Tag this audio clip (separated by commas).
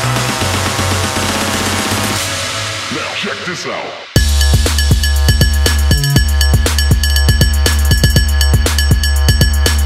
Music